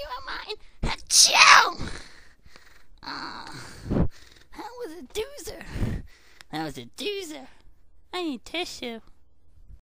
Young woman makes fake sneeze sound then speaks